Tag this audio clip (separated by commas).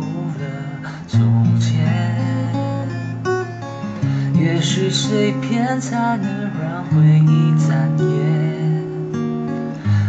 Guitar, Music, playing acoustic guitar, Musical instrument, Plucked string instrument, Acoustic guitar, Strum